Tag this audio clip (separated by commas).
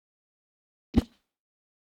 swoosh